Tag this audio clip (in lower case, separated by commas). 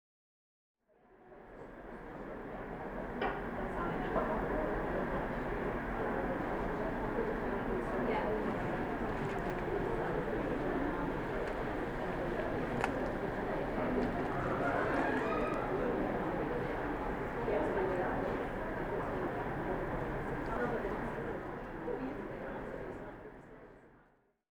rail transport, train, vehicle